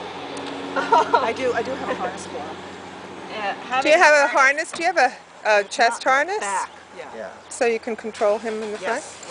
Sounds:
Speech

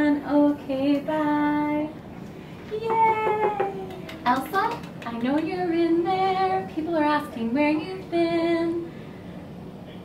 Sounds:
Speech, Female singing

